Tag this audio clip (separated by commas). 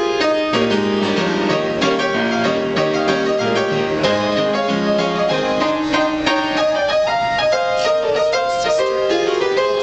Music